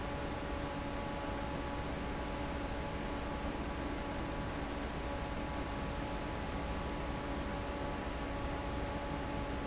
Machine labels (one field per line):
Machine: fan